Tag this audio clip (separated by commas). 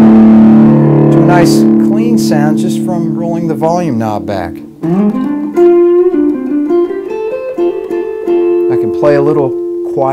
Guitar, Plucked string instrument, Music, Musical instrument, inside a small room, Speech